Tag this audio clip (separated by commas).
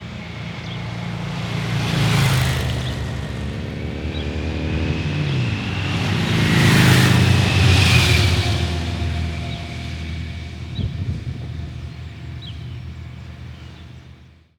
Motor vehicle (road), Vehicle, Motorcycle, Traffic noise